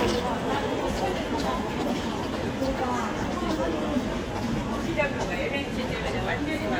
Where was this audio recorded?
in a crowded indoor space